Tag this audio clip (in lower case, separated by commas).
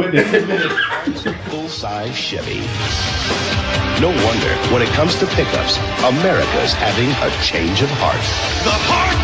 speech, music